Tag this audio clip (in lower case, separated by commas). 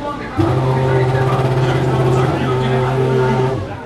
car, vehicle, auto racing, motor vehicle (road), engine, engine starting